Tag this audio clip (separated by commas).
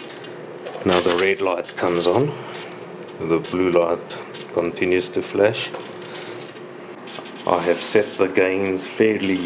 inside a small room, Speech